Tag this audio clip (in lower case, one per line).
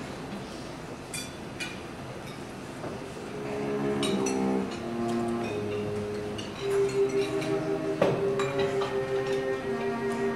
music